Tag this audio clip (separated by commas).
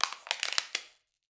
Crushing